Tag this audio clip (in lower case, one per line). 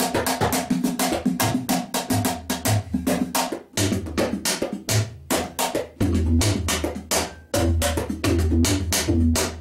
percussion
music
drum
musical instrument
tabla